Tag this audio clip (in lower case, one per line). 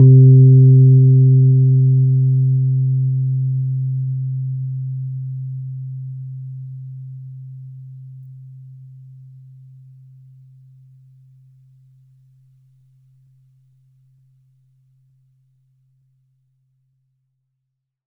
musical instrument
keyboard (musical)
piano
music